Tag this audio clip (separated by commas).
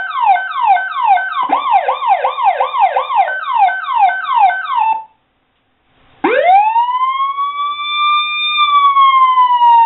Ambulance (siren), Siren, ambulance siren, Police car (siren)